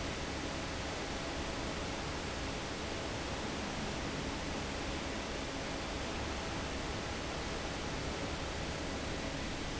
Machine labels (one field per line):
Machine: fan